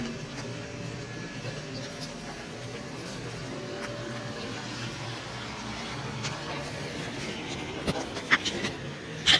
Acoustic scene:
residential area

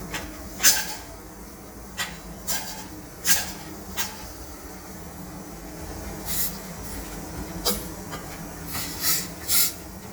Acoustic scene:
kitchen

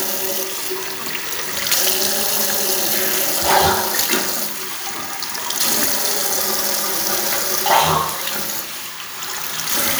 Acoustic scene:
restroom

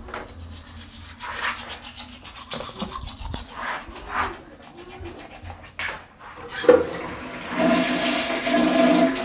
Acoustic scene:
restroom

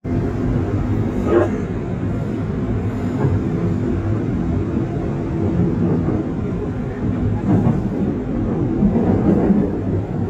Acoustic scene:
subway train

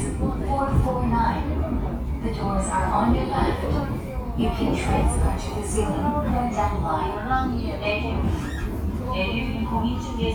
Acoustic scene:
subway train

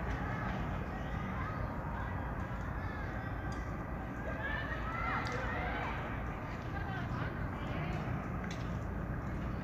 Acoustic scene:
park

